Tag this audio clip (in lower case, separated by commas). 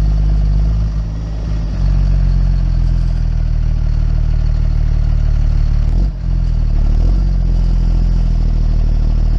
outside, rural or natural, vehicle